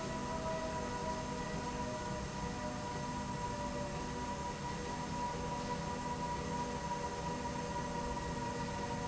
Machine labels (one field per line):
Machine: slide rail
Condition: normal